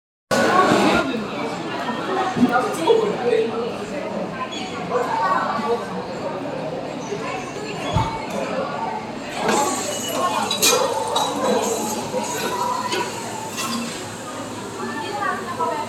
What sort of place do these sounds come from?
cafe